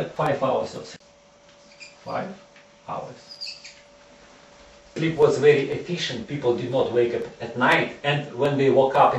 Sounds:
Speech

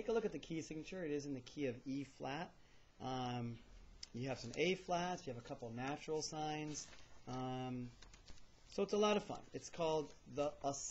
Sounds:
Speech

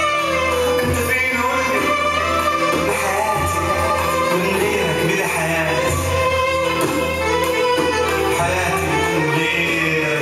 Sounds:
Music

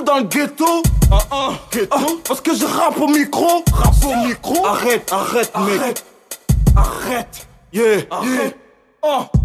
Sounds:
Music

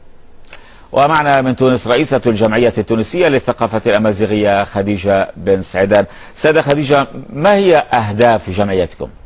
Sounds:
Speech

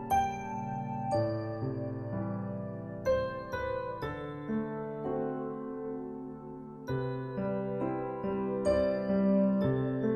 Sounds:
Music

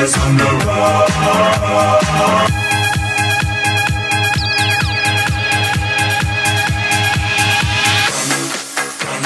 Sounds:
Electronic dance music, Music

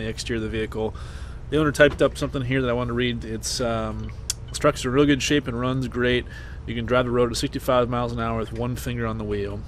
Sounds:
Speech

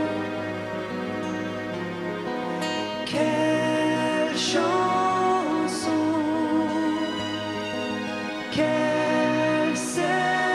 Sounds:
Music

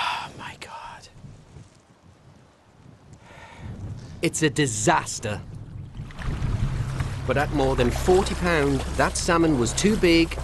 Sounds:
Speech, Music

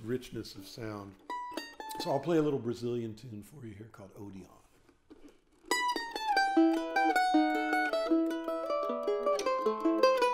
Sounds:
Music, Mandolin, Speech

